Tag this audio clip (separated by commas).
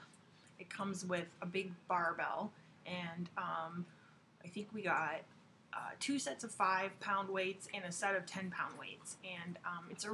Speech